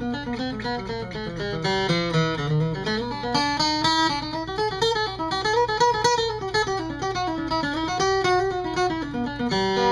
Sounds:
musical instrument, guitar, music, plucked string instrument, strum

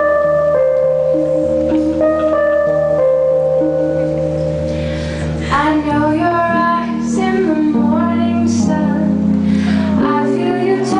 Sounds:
female singing, music

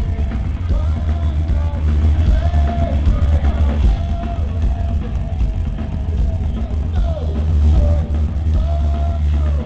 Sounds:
rock music, music, punk rock

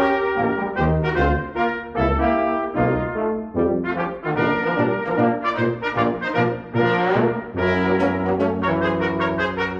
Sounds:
trumpet, brass instrument, french horn, trombone, playing french horn

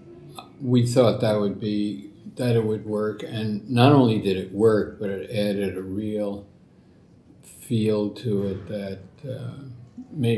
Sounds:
speech

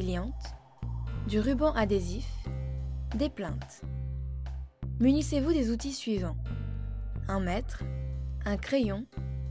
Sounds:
music, speech

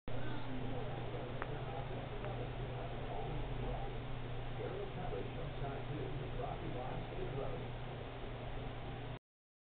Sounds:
speech

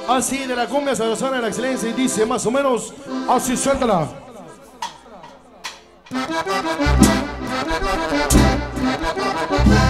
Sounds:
accordion, speech, music

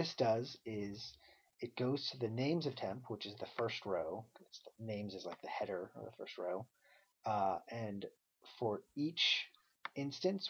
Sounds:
speech, monologue

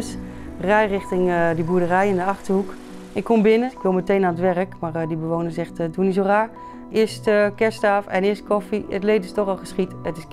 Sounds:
music, car, speech, vehicle

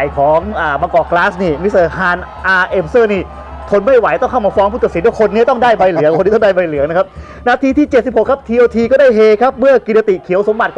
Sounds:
speech, music

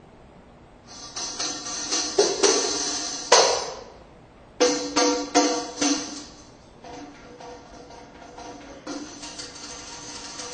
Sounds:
music

